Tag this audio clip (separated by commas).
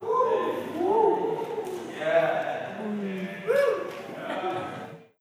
Cheering, Human group actions